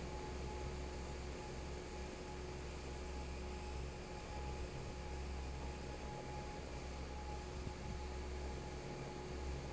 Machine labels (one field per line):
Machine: fan